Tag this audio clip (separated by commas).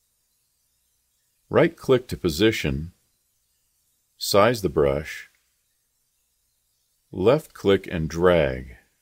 Speech